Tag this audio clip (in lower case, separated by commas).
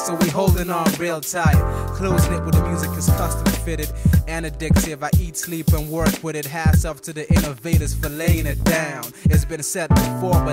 music